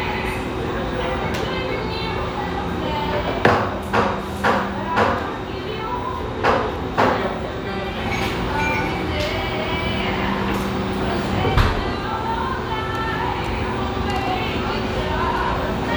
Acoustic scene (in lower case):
restaurant